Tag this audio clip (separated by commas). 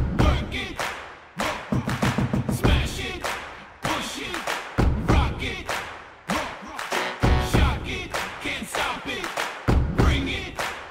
Music